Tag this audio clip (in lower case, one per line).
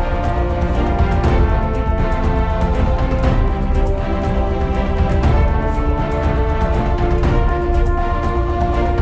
music